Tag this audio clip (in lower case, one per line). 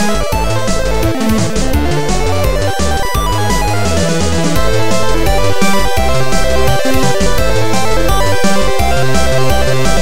music
soundtrack music
background music